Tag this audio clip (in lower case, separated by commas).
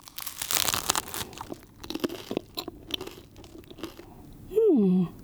mastication